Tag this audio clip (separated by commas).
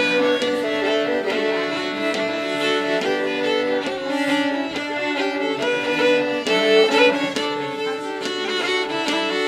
Violin, Bowed string instrument